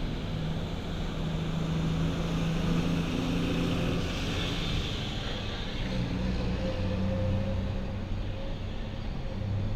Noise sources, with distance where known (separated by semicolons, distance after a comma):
large-sounding engine, near